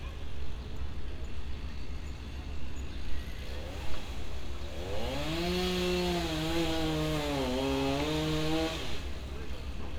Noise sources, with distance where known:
chainsaw, near
unidentified human voice

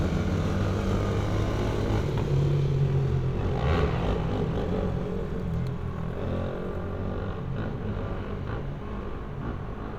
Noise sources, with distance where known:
medium-sounding engine, near

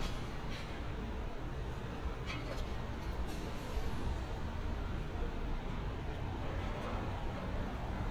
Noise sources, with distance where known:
person or small group talking

